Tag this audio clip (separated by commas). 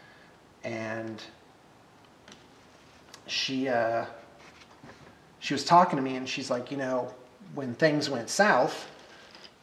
inside a small room, Speech